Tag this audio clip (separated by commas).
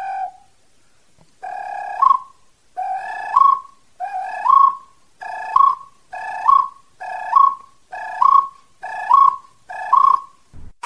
people whistling